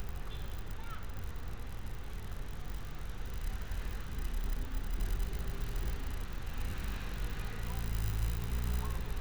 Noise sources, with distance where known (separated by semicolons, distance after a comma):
car horn, far; unidentified human voice, far